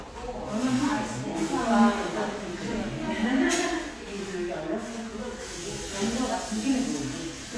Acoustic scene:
crowded indoor space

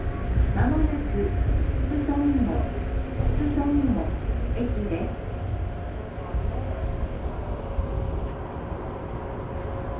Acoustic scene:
subway train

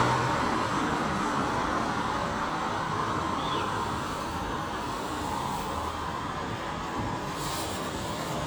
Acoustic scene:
street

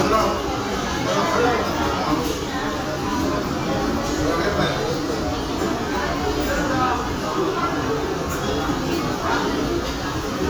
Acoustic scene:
restaurant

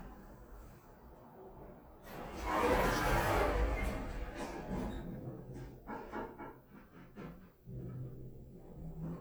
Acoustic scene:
elevator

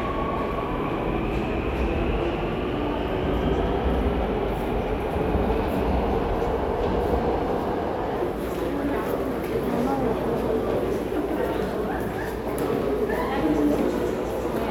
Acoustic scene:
subway station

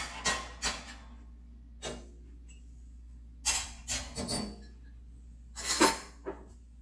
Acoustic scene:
kitchen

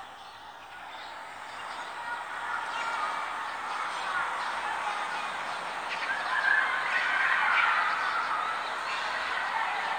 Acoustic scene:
residential area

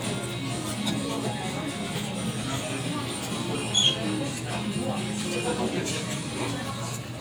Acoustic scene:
crowded indoor space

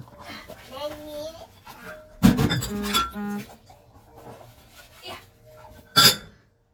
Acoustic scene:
kitchen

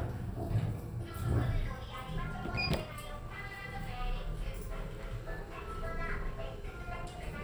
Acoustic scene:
elevator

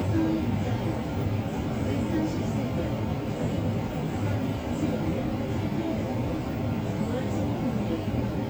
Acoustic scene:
bus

